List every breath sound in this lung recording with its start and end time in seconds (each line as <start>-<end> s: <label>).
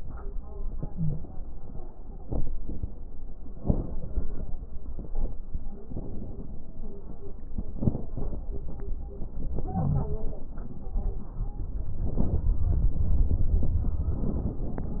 0.85-1.19 s: wheeze
3.55-4.57 s: inhalation
3.55-4.57 s: crackles
5.84-6.86 s: inhalation
7.74-8.61 s: inhalation
9.54-10.41 s: inhalation
9.68-10.24 s: crackles
12.03-12.59 s: inhalation
12.03-12.59 s: crackles